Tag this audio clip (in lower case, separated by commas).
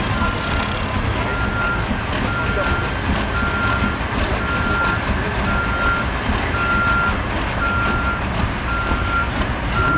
truck, speech, vehicle, reversing beeps